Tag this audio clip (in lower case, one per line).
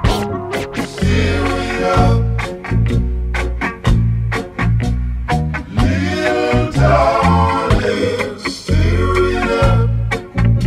music